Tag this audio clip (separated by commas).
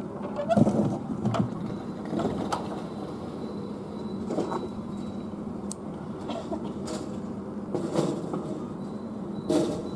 otter growling